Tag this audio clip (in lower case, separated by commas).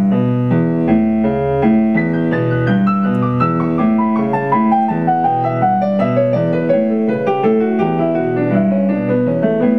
musical instrument, music, guitar